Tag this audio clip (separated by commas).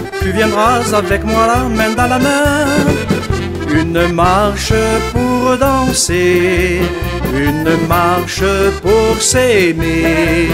Music